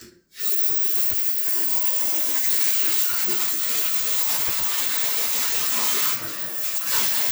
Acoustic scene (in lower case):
restroom